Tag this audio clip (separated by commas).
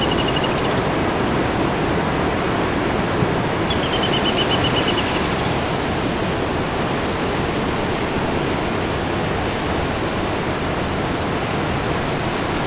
Ocean, Water